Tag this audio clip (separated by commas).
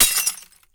Crushing, Shatter, Glass